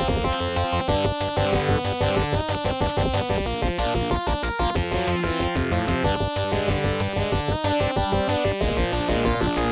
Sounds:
Music, Jazz

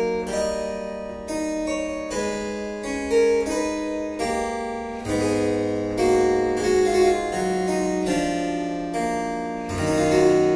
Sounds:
Music, Harpsichord

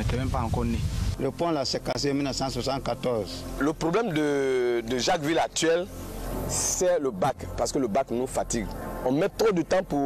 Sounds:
Music, Speech

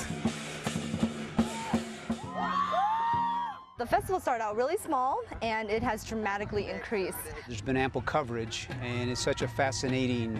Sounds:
Speech, Music

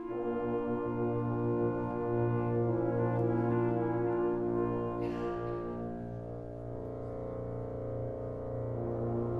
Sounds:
Music, Musical instrument

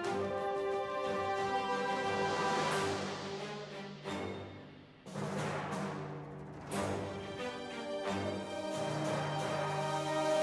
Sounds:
Music

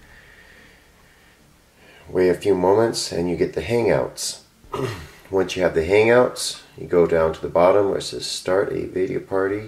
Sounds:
Speech

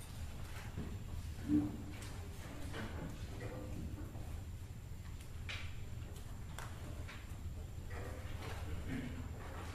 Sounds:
Speech

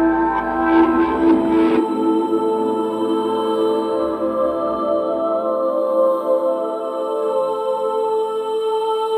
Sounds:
Ambient music, Music

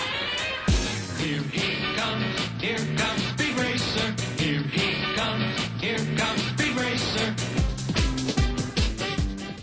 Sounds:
Music

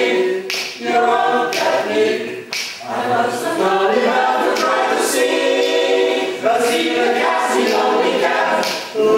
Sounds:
Choir

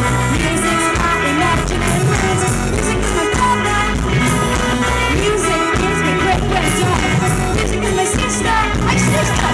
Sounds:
Music, Exciting music

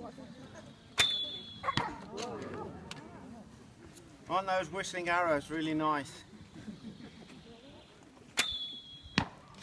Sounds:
Arrow, Speech

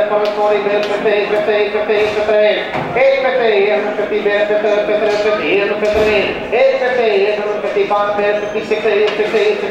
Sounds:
Speech

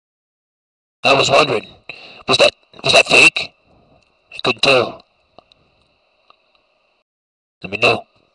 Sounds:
Speech

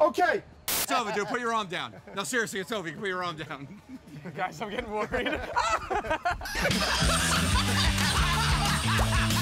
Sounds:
Laughter

